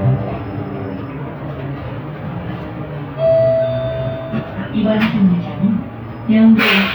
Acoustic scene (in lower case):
bus